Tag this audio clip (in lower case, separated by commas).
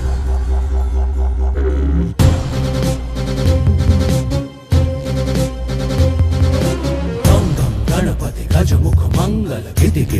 music, theme music